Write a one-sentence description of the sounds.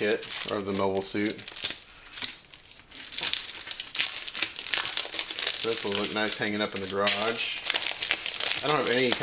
A man talking while crumpling paper